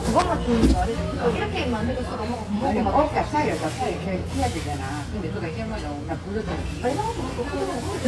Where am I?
in a restaurant